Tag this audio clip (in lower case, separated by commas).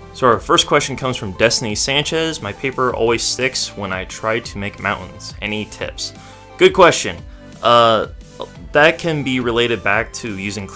music, speech